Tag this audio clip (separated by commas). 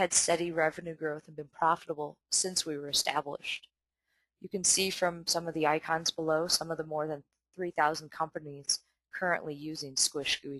Speech